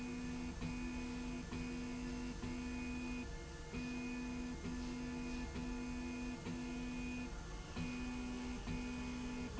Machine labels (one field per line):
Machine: slide rail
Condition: normal